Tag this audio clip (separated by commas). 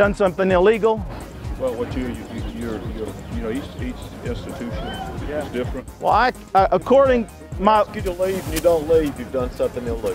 Music, Speech, man speaking